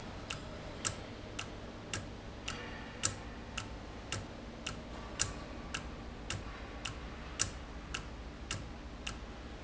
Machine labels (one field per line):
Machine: valve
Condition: normal